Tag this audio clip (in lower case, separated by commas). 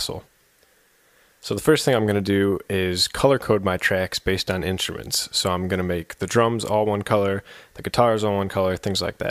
speech